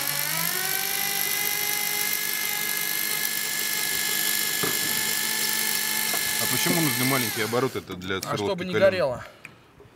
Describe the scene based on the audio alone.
Loud vibrations of a power tool with men speaking